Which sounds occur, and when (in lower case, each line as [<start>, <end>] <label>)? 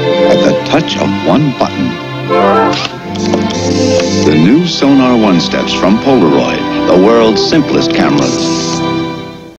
[0.00, 9.55] music
[2.68, 2.91] single-lens reflex camera
[7.04, 8.26] male speech
[8.15, 8.81] mechanisms